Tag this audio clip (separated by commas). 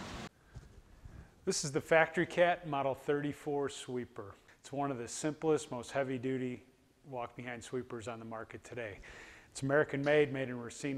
Speech